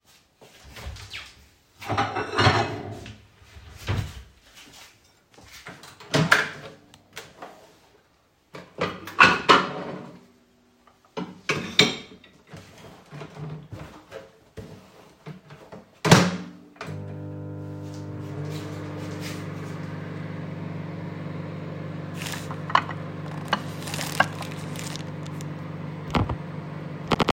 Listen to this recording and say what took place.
I opened the microwave, put a plate in, turned it on and got rid of a plastic bag.